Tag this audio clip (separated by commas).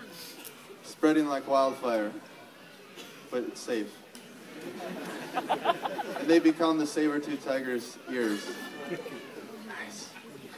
Speech